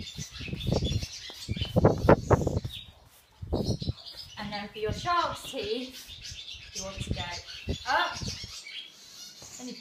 Birds chirping while woman speaks